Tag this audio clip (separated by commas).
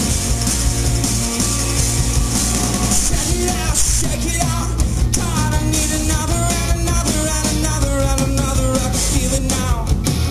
Music, Orchestra